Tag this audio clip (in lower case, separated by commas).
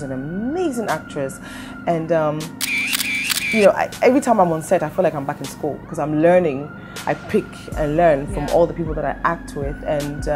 speech, music